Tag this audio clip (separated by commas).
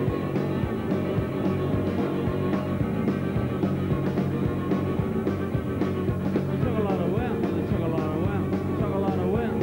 Music